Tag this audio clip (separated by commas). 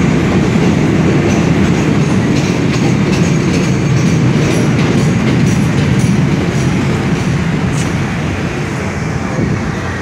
underground